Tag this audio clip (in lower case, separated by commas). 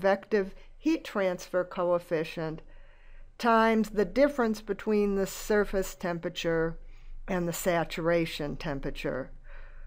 speech